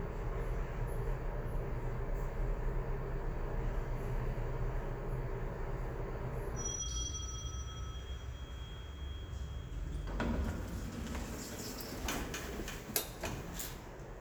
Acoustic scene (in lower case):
elevator